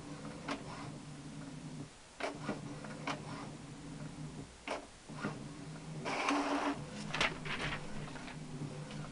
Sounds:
printer

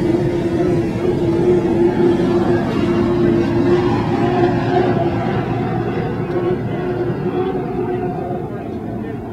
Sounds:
speedboat
boat

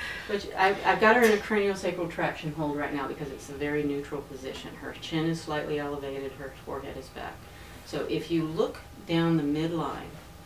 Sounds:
speech

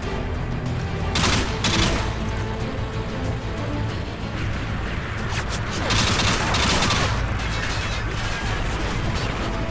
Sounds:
music

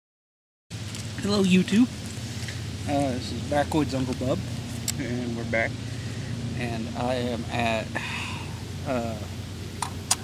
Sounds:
speech

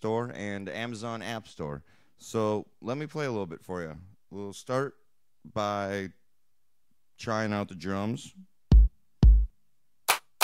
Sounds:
music
speech
musical instrument

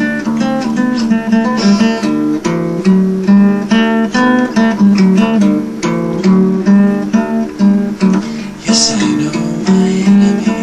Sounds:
singing
musical instrument
music
plucked string instrument
guitar

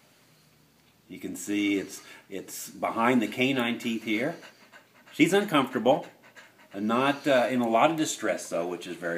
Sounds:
speech
pant
animal

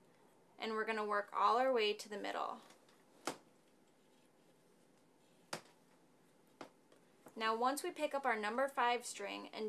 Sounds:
speech

